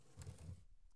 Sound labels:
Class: drawer; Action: closing; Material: wicker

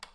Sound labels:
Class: switch; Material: plastic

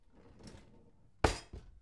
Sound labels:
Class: drawer; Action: closing; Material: wooden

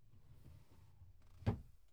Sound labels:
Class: drawer; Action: closing; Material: wooden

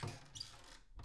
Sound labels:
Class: cupboard; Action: opening; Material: wooden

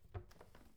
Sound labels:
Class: cupboard; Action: opening; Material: wooden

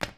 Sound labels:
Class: object falling; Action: being thrown; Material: plastic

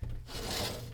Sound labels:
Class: window; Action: opening; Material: glass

